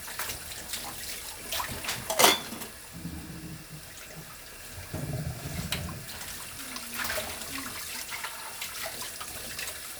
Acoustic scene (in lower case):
kitchen